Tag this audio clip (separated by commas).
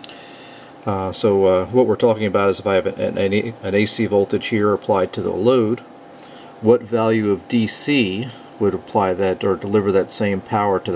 Speech